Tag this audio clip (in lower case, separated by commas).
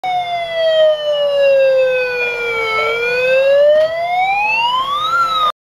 police car (siren), siren, emergency vehicle